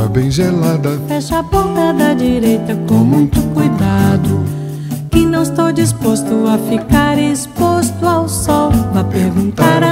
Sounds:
Music

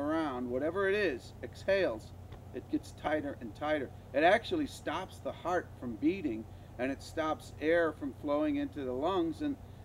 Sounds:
crocodiles hissing

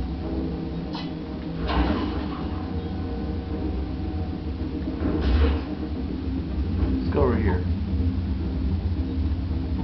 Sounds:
Speech, Music

